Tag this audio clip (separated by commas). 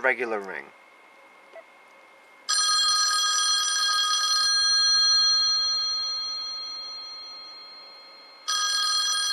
Telephone, Speech